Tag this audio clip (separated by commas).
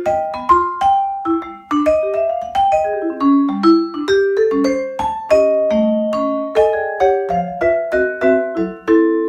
playing vibraphone